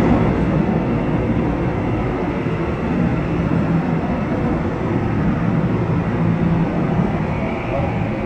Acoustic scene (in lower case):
subway train